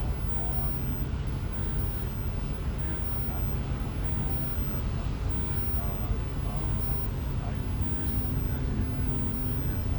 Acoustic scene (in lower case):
bus